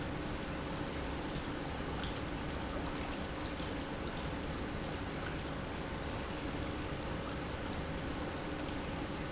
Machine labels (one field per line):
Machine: pump